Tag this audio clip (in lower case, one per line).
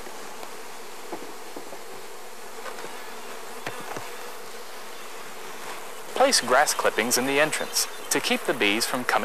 speech
bee or wasp
insect